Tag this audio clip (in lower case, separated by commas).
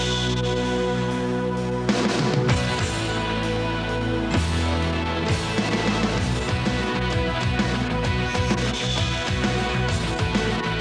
television, music